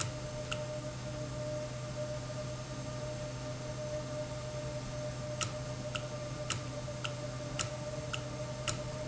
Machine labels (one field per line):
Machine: valve